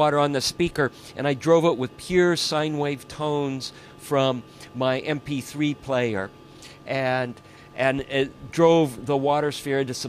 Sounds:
speech

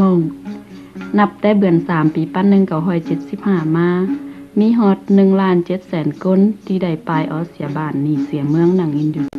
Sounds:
speech, monologue, music

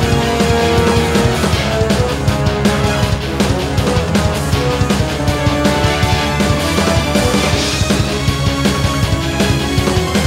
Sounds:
theme music, music

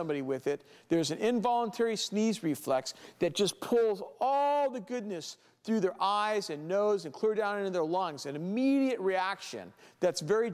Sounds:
speech

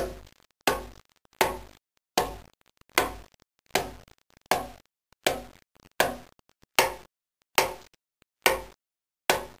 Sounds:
wood

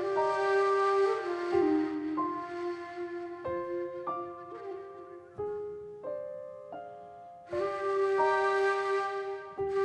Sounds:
music

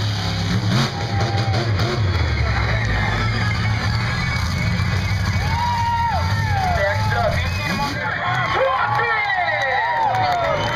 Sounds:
speech

